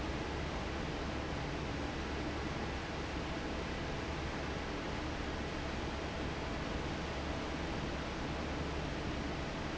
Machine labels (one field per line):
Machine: fan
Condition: normal